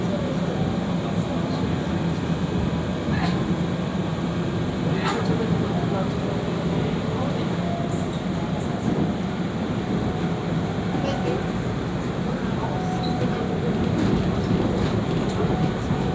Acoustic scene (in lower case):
subway train